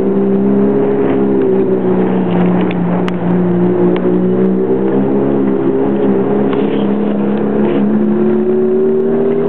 A race car is driving fast outside